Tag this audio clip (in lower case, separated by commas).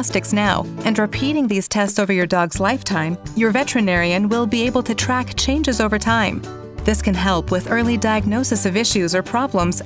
speech, music